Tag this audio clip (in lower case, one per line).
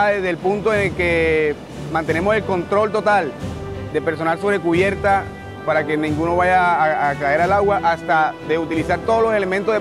speech
music